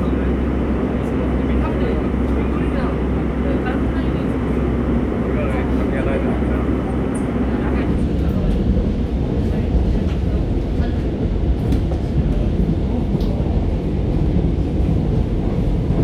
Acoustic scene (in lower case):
subway train